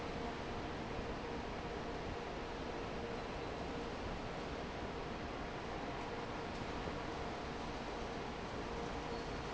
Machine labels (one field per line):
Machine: fan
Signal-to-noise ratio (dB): 0 dB